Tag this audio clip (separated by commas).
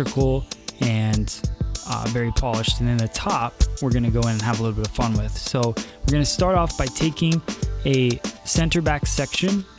Speech, Music